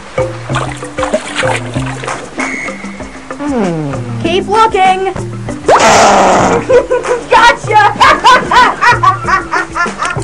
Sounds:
Music, Speech

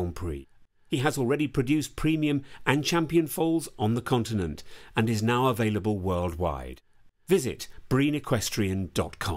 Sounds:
Speech

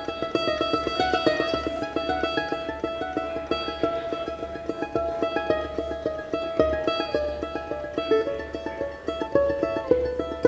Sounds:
Music, Mandolin

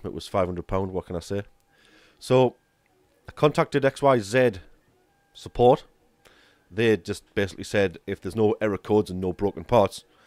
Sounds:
Speech

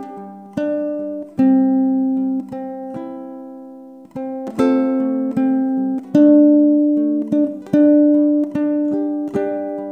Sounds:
Music, Ukulele

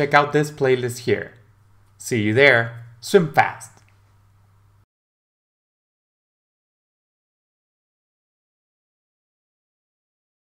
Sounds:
striking pool

